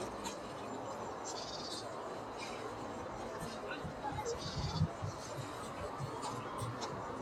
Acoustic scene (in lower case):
park